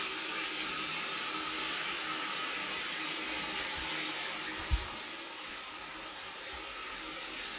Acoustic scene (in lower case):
restroom